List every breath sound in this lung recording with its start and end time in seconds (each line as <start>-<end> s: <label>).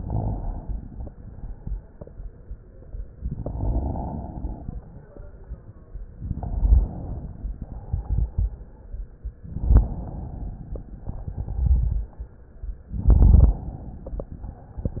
3.29-4.64 s: inhalation
6.17-7.60 s: inhalation
7.62-8.90 s: exhalation
11.07-12.59 s: exhalation
12.93-14.41 s: inhalation